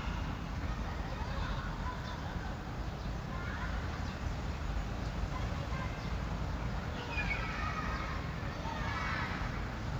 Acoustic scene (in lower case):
residential area